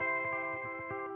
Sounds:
music, electric guitar, musical instrument, guitar, plucked string instrument

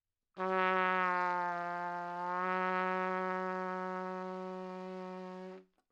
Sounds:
musical instrument, trumpet, brass instrument, music

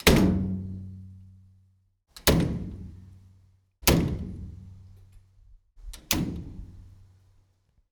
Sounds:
slam, home sounds, door

